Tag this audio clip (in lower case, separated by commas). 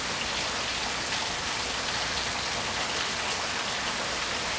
water, rain